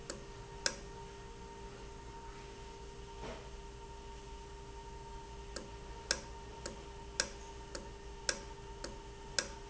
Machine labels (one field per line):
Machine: valve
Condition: normal